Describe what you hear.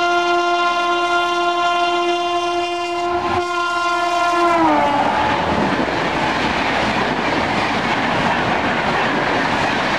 A train horn blows and a rattling sound occurs